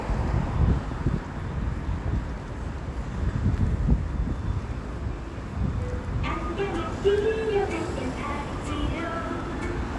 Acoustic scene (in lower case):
street